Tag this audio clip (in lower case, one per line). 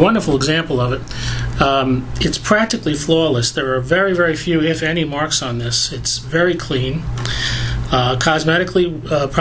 speech